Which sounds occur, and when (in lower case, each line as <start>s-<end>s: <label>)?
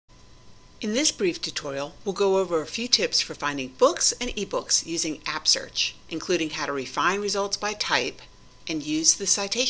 0.1s-9.6s: mechanisms
0.8s-1.9s: female speech
2.0s-3.6s: female speech
3.8s-5.9s: female speech
6.1s-8.2s: female speech
8.1s-8.2s: tick
8.6s-9.6s: female speech